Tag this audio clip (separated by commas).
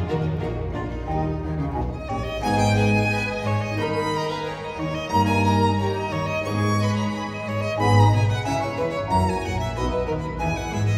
Violin, Musical instrument, Music